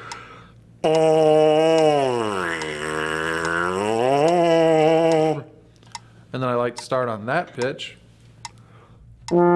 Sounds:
Speech, inside a small room, Musical instrument, Trombone, Music

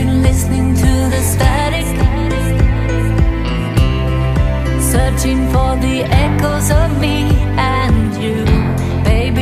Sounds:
Music

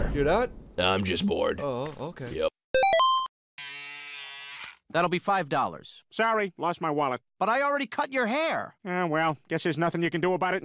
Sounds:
Music, Speech

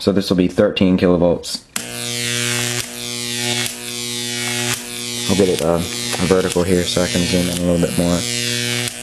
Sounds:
Speech

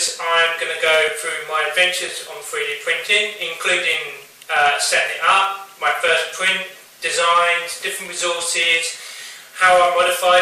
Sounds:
Speech

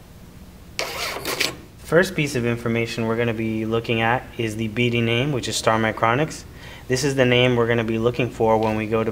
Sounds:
Printer, Speech

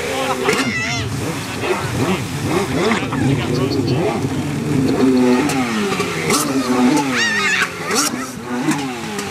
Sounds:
speedboat, Speech, Vehicle, Water vehicle

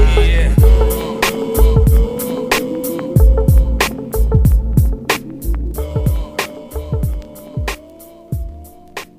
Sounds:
Music

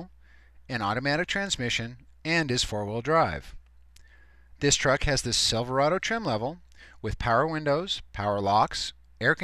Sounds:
Speech

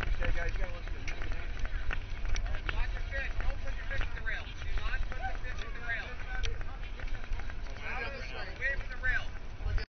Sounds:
Speech

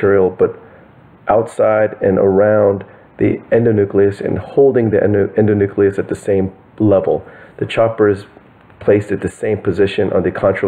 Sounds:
Speech

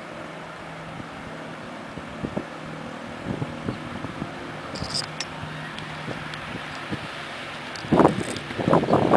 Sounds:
Speech

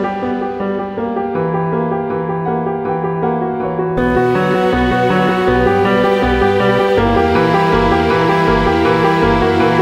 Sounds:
Theme music, Music

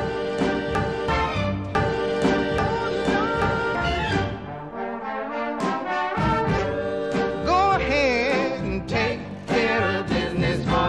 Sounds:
Folk music

